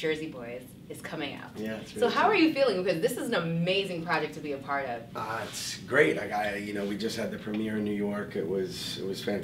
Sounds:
speech

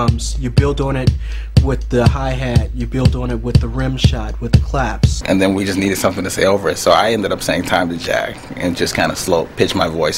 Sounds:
music, speech

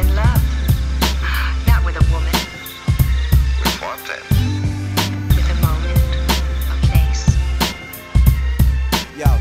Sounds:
music

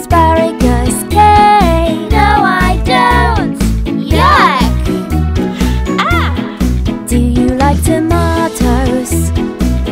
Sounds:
child singing

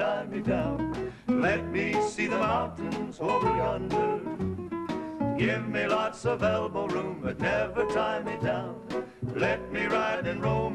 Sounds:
male singing, music

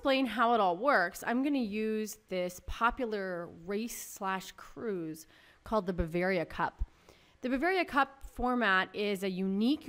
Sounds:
speech

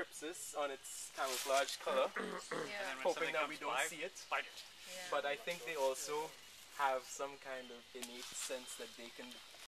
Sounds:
speech, animal, outside, rural or natural

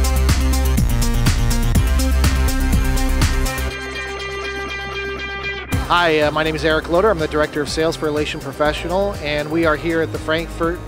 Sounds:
speech, music, sound effect

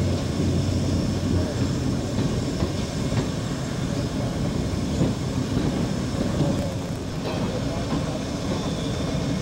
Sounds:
vehicle, rail transport, train, railroad car

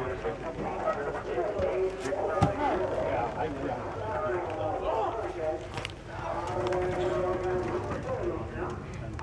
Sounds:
speech

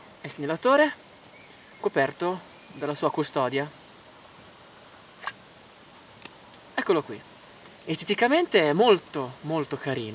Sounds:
speech

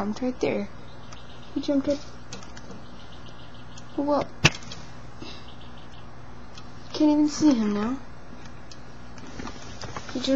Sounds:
speech

